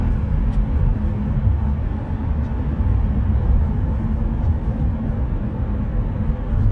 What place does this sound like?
car